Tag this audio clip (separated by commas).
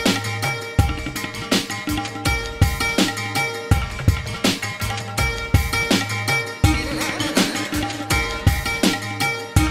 Music